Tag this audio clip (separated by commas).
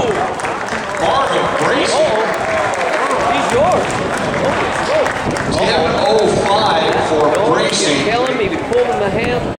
Speech, outside, urban or man-made